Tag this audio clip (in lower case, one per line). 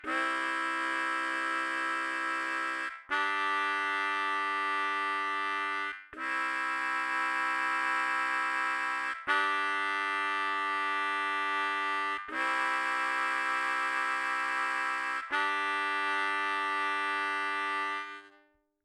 music
musical instrument
harmonica